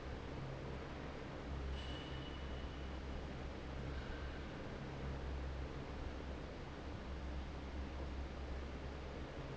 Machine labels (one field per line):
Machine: fan